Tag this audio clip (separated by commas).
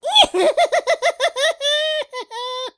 Human voice, Laughter